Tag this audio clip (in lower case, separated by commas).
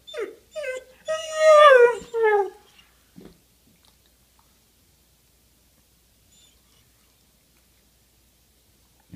dog whimpering